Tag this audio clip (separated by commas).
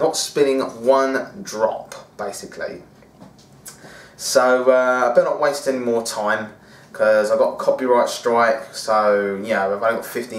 Speech